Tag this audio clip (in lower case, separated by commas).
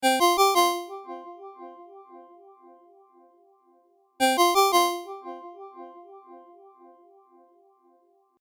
telephone, ringtone, alarm